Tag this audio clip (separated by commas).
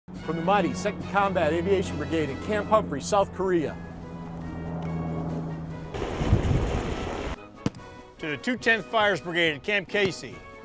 Music, Speech